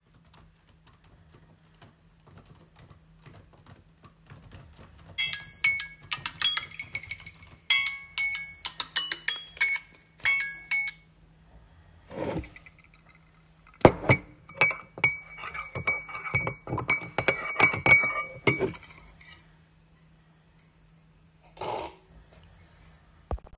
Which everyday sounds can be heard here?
keyboard typing, phone ringing, wardrobe or drawer, cutlery and dishes